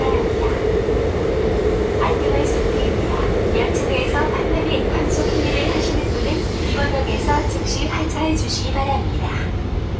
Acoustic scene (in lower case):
subway train